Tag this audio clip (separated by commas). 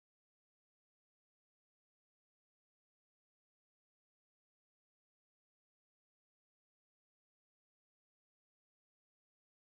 Silence